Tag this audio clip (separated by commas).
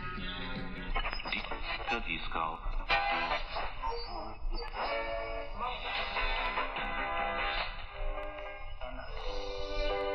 Music, Speech